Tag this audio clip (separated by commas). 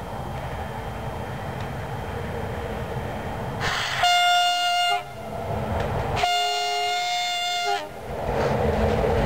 Train, Vehicle